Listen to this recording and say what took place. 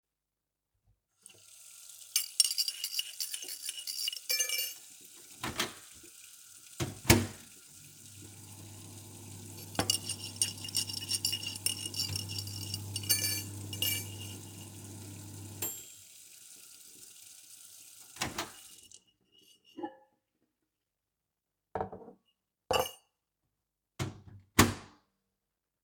I started the microwave to heat up a cup of water. While the microwave was running, I turned on the kitchen tap and started washing several metal forks and spoons. The hum of the microwave, the running water, and the clinking cutlery all occurred simultaneously.